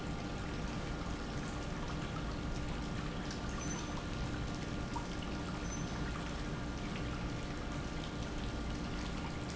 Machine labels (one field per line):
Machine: pump